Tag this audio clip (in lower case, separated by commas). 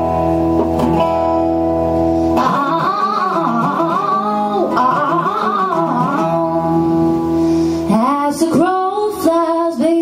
music